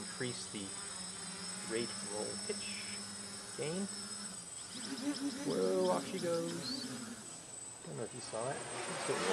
An adult male speaks, and humming occurs and oscillates